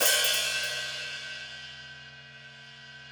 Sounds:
Percussion, Musical instrument, Music, Cymbal, Hi-hat

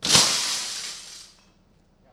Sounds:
Shatter, Glass

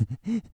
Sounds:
Respiratory sounds, Breathing

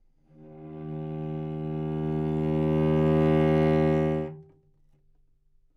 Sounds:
Bowed string instrument, Music, Musical instrument

